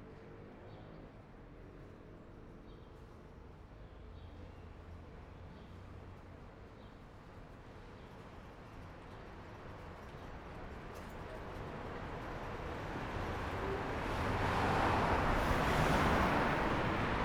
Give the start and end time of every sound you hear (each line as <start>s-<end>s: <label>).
0.0s-5.4s: motorcycle
0.0s-5.4s: motorcycle engine accelerating
5.5s-13.7s: bus wheels rolling
5.5s-17.2s: bus
12.1s-17.2s: car
12.1s-17.2s: car wheels rolling
15.0s-16.8s: bus compressor